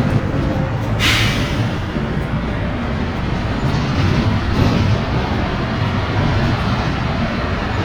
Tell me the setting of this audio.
bus